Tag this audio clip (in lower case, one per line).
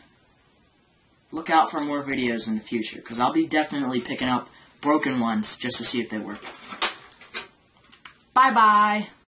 speech